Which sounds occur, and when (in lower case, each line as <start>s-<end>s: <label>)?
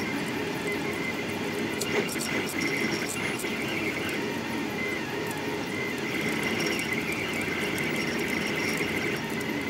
0.0s-9.6s: mechanisms